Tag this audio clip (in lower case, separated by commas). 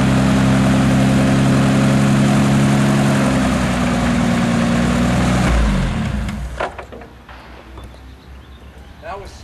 engine, idling, speech, vehicle